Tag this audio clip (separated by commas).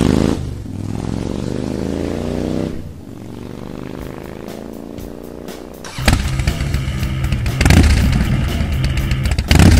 Music, Vehicle, Motorcycle